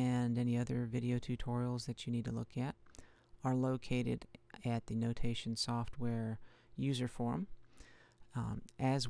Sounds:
speech

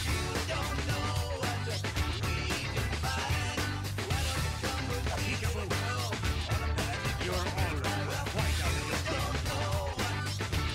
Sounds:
music, roll, speech

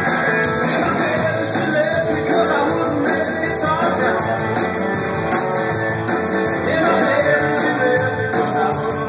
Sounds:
blues, music

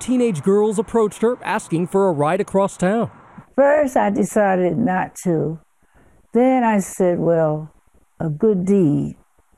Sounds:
speech

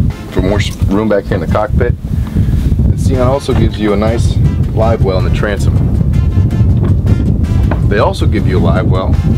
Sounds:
speech, music, boat, speedboat

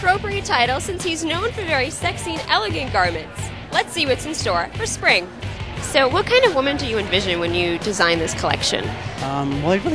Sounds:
speech, music

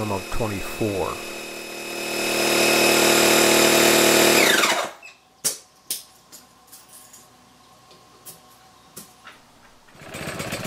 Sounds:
power tool, tools, speech

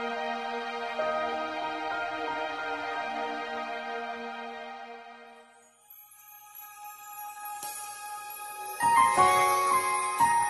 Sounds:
gospel music, music

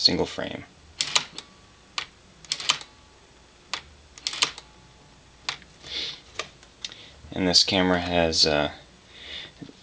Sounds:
speech, camera

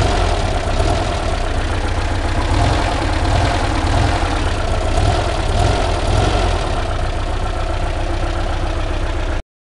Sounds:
idling, engine, vehicle

